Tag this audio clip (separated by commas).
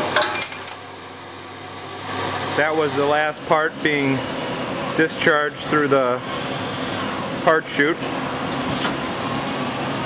inside a small room, Speech